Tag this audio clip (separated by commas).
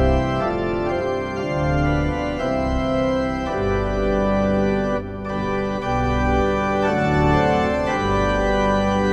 playing hammond organ, Musical instrument, Keyboard (musical), Hammond organ, Electronic organ, Music